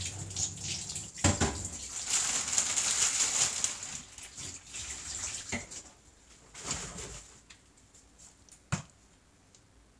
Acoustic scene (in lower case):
kitchen